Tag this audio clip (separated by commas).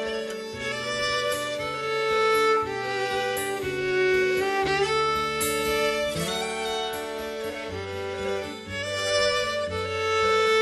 Music, Musical instrument, Violin